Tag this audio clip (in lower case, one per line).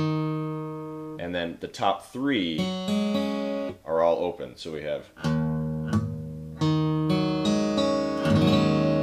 acoustic guitar
musical instrument
speech
guitar
plucked string instrument
music
inside a small room